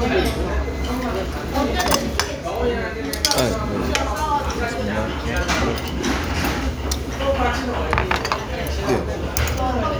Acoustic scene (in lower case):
restaurant